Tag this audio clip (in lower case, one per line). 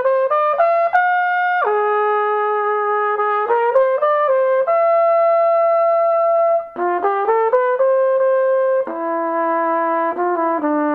trumpet
playing trumpet
brass instrument